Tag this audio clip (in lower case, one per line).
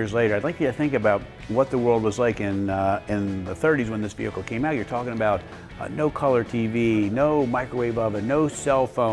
music
speech